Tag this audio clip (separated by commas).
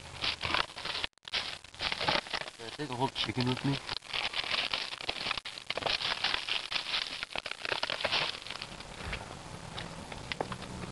Speech